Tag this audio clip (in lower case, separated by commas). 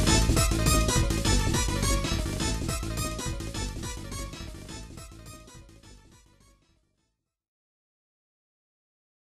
music